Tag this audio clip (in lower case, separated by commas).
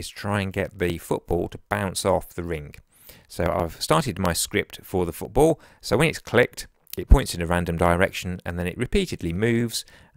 speech